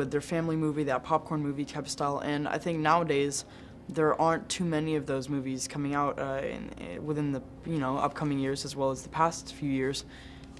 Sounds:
speech

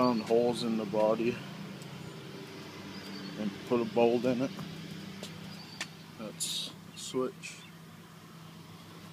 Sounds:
outside, rural or natural
speech

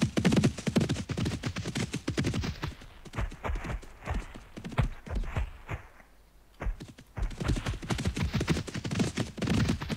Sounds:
clip-clop

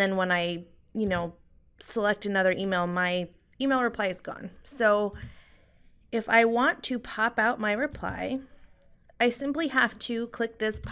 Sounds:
speech

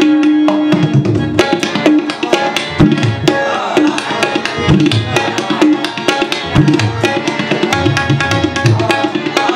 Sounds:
playing tabla

